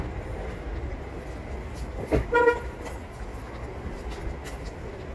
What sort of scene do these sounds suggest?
residential area